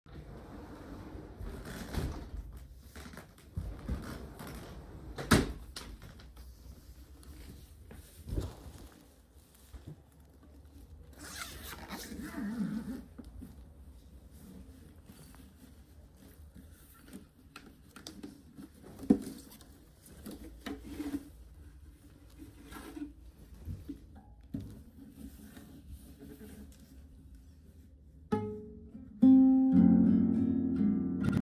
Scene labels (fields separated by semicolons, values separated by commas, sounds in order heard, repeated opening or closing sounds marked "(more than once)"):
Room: living room; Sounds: wardrobe or drawer, phone ringing